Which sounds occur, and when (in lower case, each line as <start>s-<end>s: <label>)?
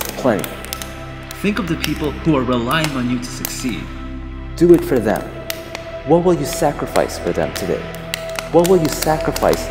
0.0s-9.7s: music
0.0s-0.2s: computer keyboard
0.1s-0.4s: man speaking
0.3s-0.4s: computer keyboard
0.6s-0.8s: computer keyboard
1.1s-1.3s: computer keyboard
1.4s-3.8s: man speaking
1.5s-2.0s: computer keyboard
2.2s-2.3s: computer keyboard
2.5s-2.9s: computer keyboard
3.4s-3.7s: computer keyboard
4.5s-5.2s: man speaking
4.6s-5.2s: computer keyboard
5.4s-5.6s: computer keyboard
5.7s-5.8s: computer keyboard
6.1s-7.8s: man speaking
6.5s-6.5s: computer keyboard
6.8s-7.0s: computer keyboard
7.5s-7.6s: computer keyboard
7.9s-9.5s: computer keyboard
8.5s-9.7s: man speaking